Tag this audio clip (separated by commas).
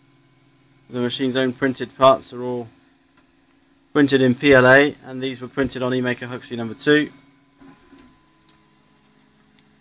Speech